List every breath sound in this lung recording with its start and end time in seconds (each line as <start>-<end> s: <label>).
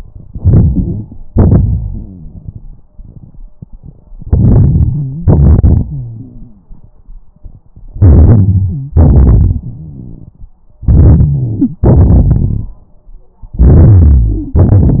0.23-1.25 s: inhalation
1.25-2.87 s: exhalation
1.63-2.81 s: rhonchi
4.21-5.24 s: inhalation
4.92-5.25 s: wheeze
5.22-6.93 s: exhalation
5.89-6.72 s: rhonchi
7.95-8.96 s: inhalation
8.67-8.93 s: wheeze
8.92-10.55 s: exhalation
8.95-10.52 s: rhonchi
10.81-11.82 s: inhalation
11.80-12.79 s: exhalation
11.82-12.82 s: rhonchi
13.60-14.56 s: inhalation
14.37-14.56 s: wheeze